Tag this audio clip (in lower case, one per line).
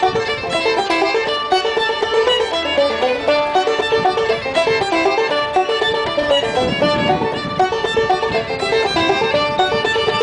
bowed string instrument
fiddle
pizzicato